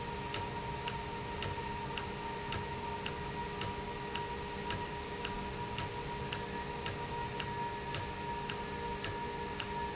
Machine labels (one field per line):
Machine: valve